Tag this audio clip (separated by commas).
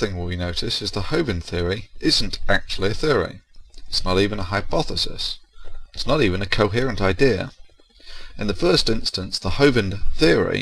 Speech